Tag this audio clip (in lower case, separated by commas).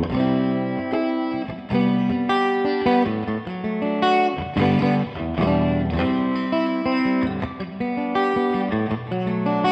music, electric guitar